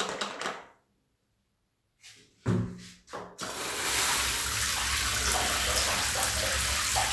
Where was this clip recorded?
in a restroom